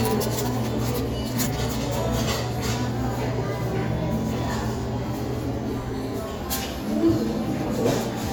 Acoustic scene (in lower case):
cafe